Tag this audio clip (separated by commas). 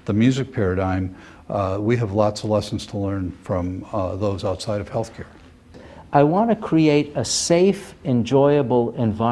Speech